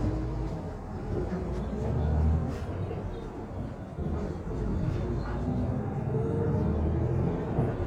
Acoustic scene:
bus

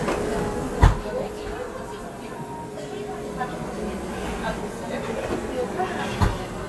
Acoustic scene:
cafe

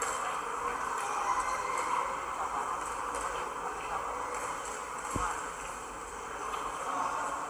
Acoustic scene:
subway station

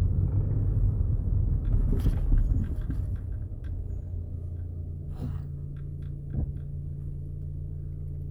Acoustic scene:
car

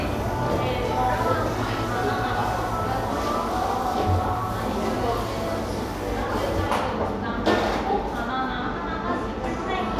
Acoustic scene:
cafe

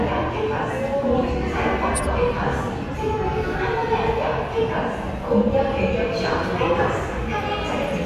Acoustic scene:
subway station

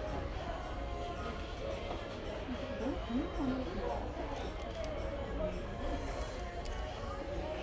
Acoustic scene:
crowded indoor space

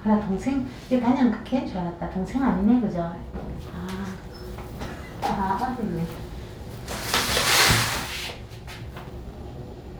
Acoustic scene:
elevator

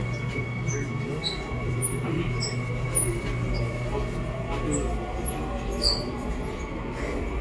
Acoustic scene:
subway train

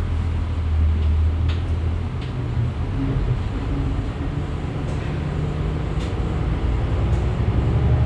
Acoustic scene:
bus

